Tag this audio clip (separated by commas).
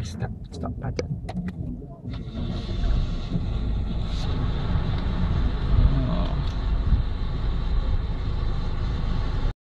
Engine starting, Car, Vehicle, vroom, Engine, Speech, Idling